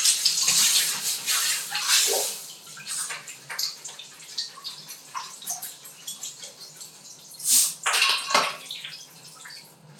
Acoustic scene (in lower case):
restroom